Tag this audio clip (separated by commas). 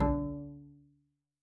Musical instrument, Bowed string instrument, Music